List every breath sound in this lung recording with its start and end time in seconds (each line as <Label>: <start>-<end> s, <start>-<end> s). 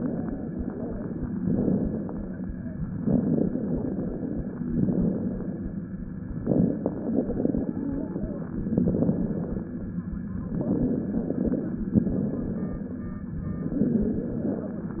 Inhalation: 3.00-4.55 s, 6.41-7.97 s, 10.47-11.90 s, 13.55-15.00 s
Exhalation: 1.35-2.47 s, 4.61-5.73 s, 8.65-9.91 s, 11.95-13.21 s